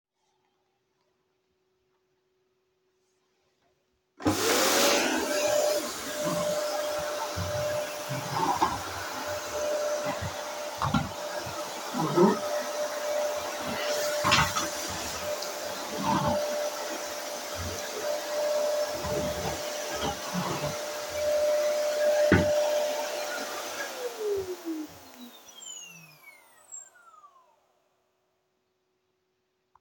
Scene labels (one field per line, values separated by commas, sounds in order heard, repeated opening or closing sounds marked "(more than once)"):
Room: living room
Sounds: vacuum cleaner